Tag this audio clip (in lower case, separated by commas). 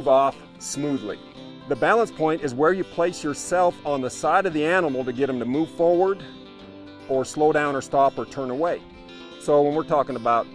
speech, music